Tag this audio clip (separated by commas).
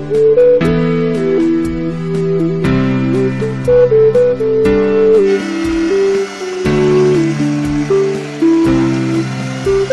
Music